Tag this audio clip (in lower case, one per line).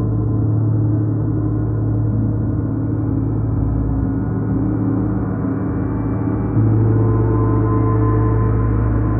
playing gong